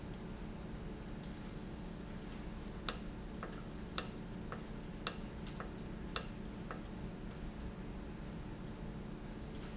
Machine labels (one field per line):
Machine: valve